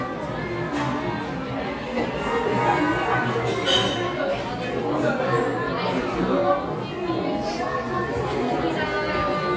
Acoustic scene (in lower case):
crowded indoor space